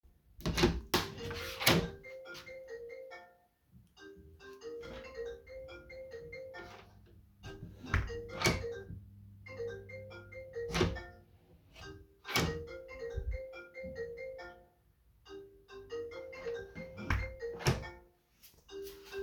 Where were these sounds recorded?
bedroom